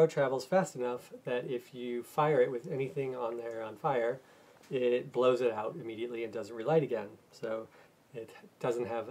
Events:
0.0s-9.1s: background noise
0.0s-0.9s: male speech
1.1s-4.1s: male speech
4.6s-7.1s: male speech
7.3s-7.6s: male speech
8.1s-8.3s: male speech
8.5s-9.1s: male speech

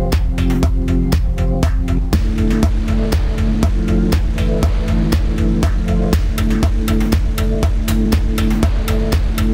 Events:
0.0s-9.5s: music
2.1s-9.5s: waves
2.1s-9.5s: ship

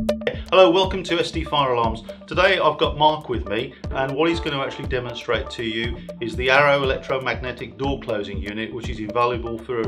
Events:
0.0s-9.8s: music
0.2s-0.3s: generic impact sounds
0.3s-0.4s: breathing
0.4s-2.0s: male speech
2.0s-2.2s: breathing
2.3s-3.6s: male speech
3.7s-3.8s: breathing
3.9s-5.9s: male speech
5.9s-6.1s: breathing
6.2s-9.8s: male speech

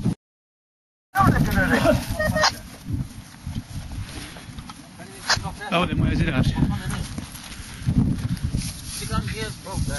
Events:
0.0s-0.1s: wind noise (microphone)
1.1s-9.9s: conversation
1.1s-2.5s: male speech
1.1s-9.9s: wind
1.1s-2.5s: wind noise (microphone)
1.5s-1.6s: tick
1.7s-2.1s: generic impact sounds
2.4s-2.6s: generic impact sounds
2.8s-3.2s: wind noise (microphone)
3.2s-4.7s: generic impact sounds
3.3s-3.4s: tick
3.4s-4.0s: wind noise (microphone)
3.5s-3.5s: tick
4.6s-4.6s: tick
4.7s-4.7s: tick
4.9s-7.0s: male speech
5.2s-5.4s: generic impact sounds
5.4s-7.3s: wind noise (microphone)
6.4s-7.9s: generic impact sounds
7.2s-7.2s: tick
7.5s-7.6s: tick
7.8s-9.9s: wind noise (microphone)
8.4s-9.9s: generic impact sounds
9.0s-9.9s: male speech

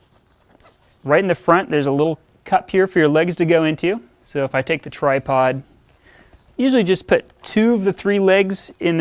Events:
0.0s-0.5s: surface contact
0.0s-9.0s: background noise
0.1s-0.4s: tweet
0.6s-0.7s: zipper (clothing)
0.8s-1.0s: breathing
1.0s-2.1s: man speaking
2.4s-4.0s: man speaking
4.2s-5.6s: man speaking
5.8s-6.4s: surface contact
6.3s-6.5s: tweet
6.5s-7.2s: man speaking
7.1s-7.3s: tweet
7.2s-7.3s: clicking
7.4s-9.0s: man speaking
7.6s-8.0s: surface contact

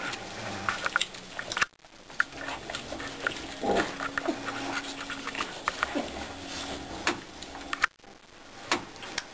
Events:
0.0s-9.3s: mechanisms
5.8s-6.2s: pig
6.4s-6.8s: surface contact
9.0s-9.2s: generic impact sounds

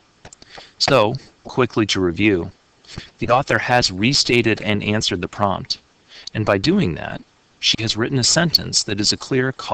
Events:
0.0s-9.7s: mechanisms
0.4s-0.5s: generic impact sounds
0.5s-0.8s: breathing
0.9s-1.2s: man speaking
1.2s-1.3s: tick
1.2s-1.4s: breathing
1.5s-2.6s: man speaking
2.9s-3.2s: breathing
3.3s-5.9s: man speaking
5.7s-5.8s: tick
6.1s-6.4s: breathing
6.4s-7.3s: man speaking
7.7s-9.7s: man speaking

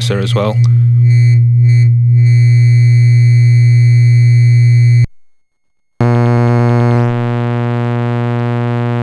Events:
0.0s-0.5s: man speaking
0.0s-9.0s: mechanisms
0.5s-0.7s: clicking

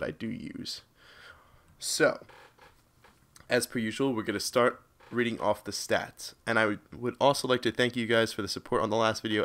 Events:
0.0s-0.8s: male speech
0.0s-9.4s: background noise
0.9s-1.4s: breathing
1.7s-2.2s: male speech
2.2s-2.8s: generic impact sounds
2.9s-3.1s: generic impact sounds
3.3s-3.5s: generic impact sounds
3.4s-4.7s: male speech
4.9s-5.6s: generic impact sounds
5.0s-6.3s: male speech
6.4s-6.7s: male speech
6.9s-9.4s: male speech

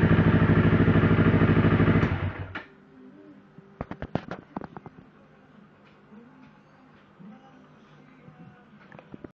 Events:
0.0s-2.5s: vehicle
2.5s-9.3s: music
6.0s-9.3s: male singing
8.7s-9.3s: generic impact sounds

